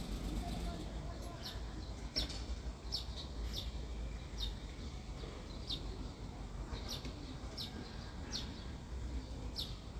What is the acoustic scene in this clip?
residential area